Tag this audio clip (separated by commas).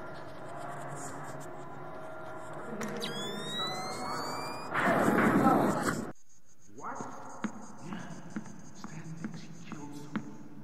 Speech